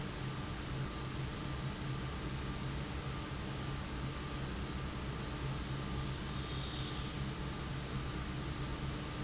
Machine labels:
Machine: fan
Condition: abnormal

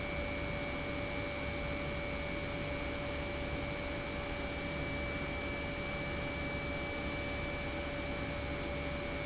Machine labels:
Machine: pump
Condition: normal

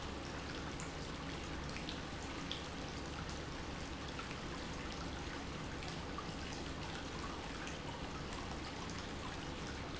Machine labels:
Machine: pump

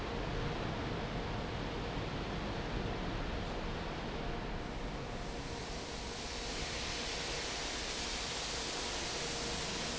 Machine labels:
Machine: fan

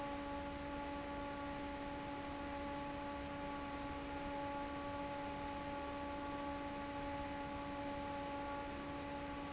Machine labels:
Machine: fan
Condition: normal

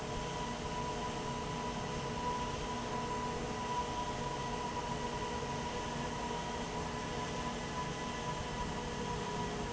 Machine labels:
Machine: fan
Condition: abnormal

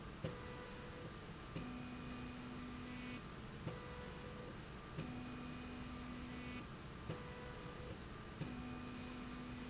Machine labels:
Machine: slide rail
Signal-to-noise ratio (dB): 6 dB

